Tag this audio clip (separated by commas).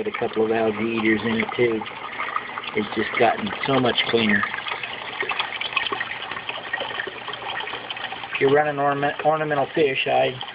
Liquid, Speech